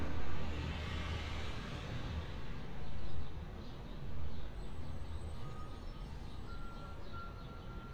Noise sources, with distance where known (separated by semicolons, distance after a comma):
engine of unclear size, far; reverse beeper, far